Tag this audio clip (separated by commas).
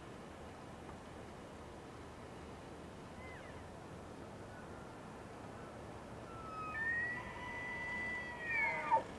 elk bugling